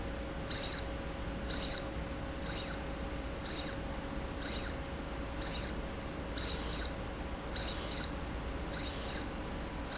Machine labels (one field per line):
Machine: slide rail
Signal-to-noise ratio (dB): -6 dB